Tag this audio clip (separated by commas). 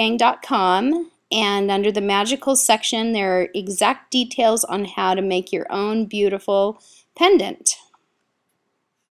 Speech